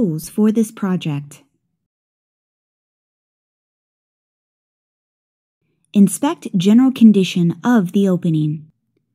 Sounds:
Speech

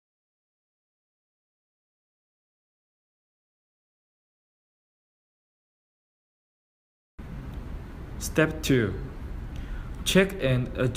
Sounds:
Speech

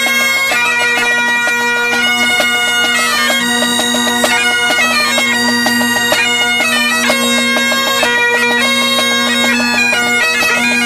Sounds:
playing bagpipes

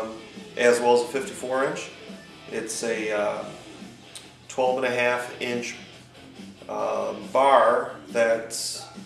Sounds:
Music, Speech

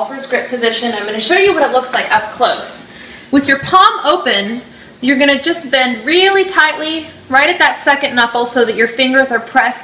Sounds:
Speech

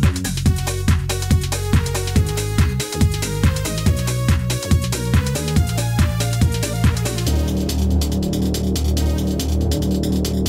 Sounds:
Music

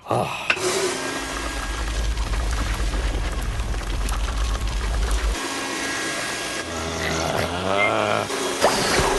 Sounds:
outside, rural or natural

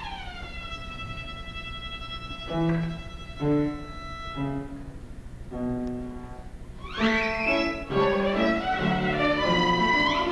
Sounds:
Musical instrument, Violin, Music

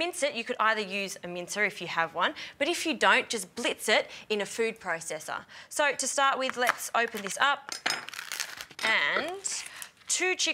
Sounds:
Speech

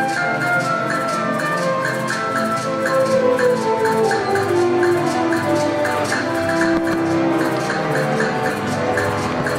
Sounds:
Classical music, Music

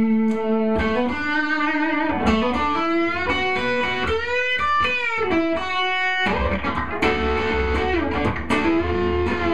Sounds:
Plucked string instrument, Music, Musical instrument, Guitar, Electric guitar, Tapping (guitar technique)

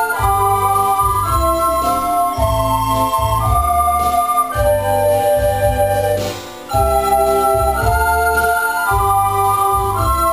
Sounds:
Theme music, Music

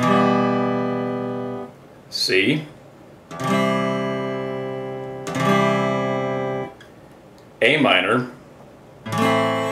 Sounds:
Guitar, Musical instrument, Electric guitar, Speech, Plucked string instrument, Music, Strum, Acoustic guitar

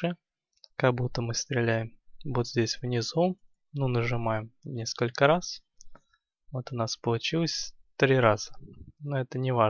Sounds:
mouse clicking

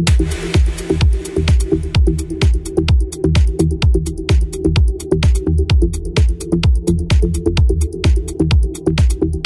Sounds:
Rhythm and blues, House music, Exciting music, Music

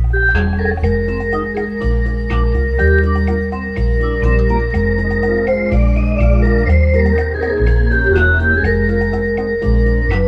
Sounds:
Music

